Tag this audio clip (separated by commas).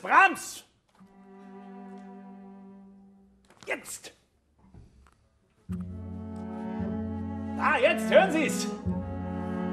Speech, Musical instrument, Cello, Music, Classical music, Bowed string instrument